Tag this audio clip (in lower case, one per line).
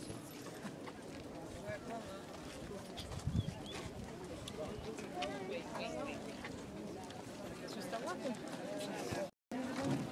walk
speech